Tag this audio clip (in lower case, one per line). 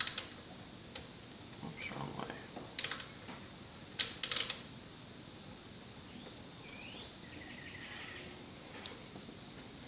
speech